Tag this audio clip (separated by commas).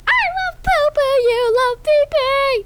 Human voice, Singing